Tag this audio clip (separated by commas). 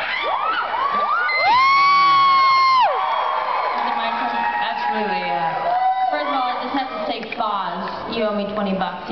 Cheering, Speech